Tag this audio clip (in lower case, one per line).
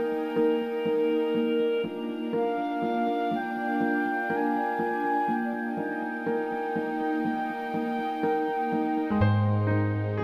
music
background music